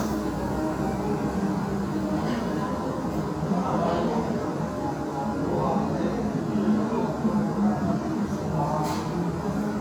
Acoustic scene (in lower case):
restaurant